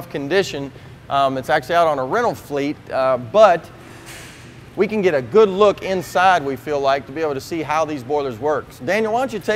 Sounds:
Speech

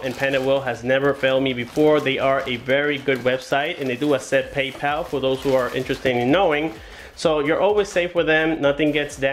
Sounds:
Speech

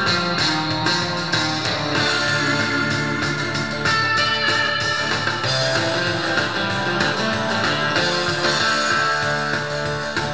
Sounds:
Music, Musical instrument, Plucked string instrument, Acoustic guitar, Guitar

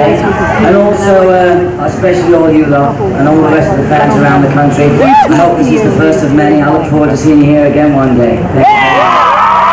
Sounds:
Speech, man speaking, Narration

